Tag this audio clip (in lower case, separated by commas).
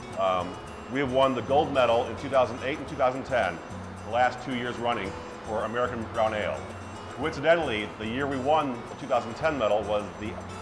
speech, music